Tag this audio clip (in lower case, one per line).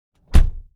car
domestic sounds
motor vehicle (road)
door
slam
vehicle